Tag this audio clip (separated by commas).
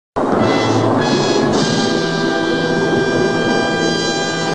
Music